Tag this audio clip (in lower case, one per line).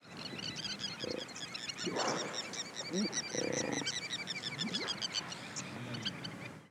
animal
bird
wild animals